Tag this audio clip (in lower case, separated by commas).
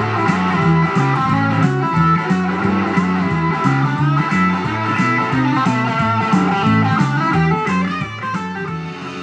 electric guitar, music, guitar, blues